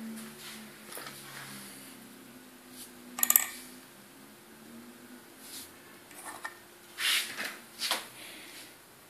Traffic in the distance, some scraping, a clink and a digital beep